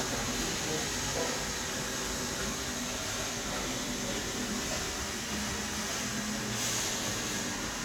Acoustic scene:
subway station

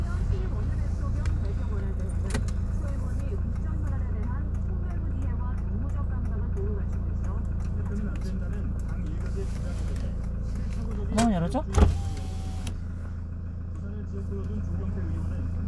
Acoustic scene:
car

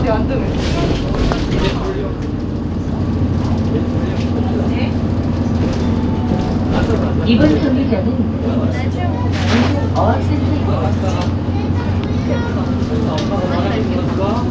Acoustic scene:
bus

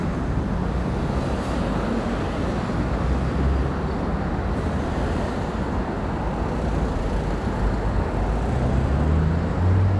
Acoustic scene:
street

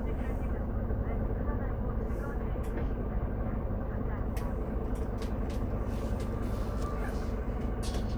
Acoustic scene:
bus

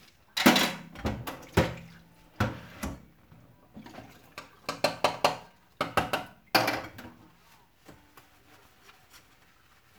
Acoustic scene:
kitchen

